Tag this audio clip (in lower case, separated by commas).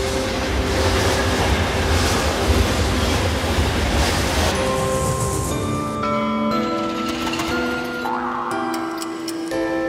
music